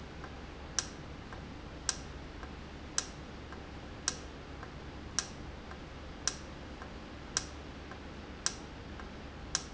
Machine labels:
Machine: valve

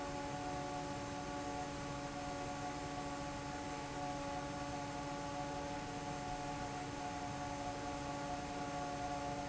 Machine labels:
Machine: fan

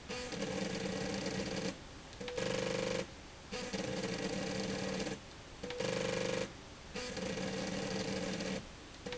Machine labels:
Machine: slide rail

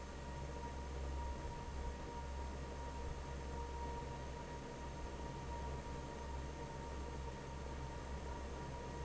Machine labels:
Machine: fan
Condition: normal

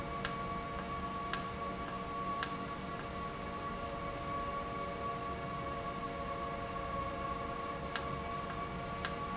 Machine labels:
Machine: valve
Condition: normal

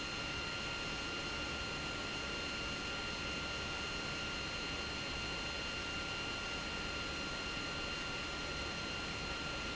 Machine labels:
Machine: pump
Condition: abnormal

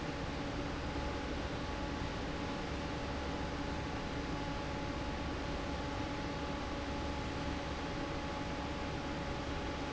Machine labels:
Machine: fan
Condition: normal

